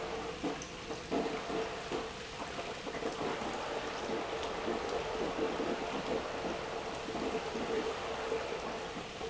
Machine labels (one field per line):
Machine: pump